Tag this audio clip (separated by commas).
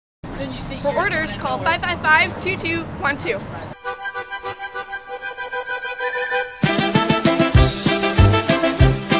Speech, Music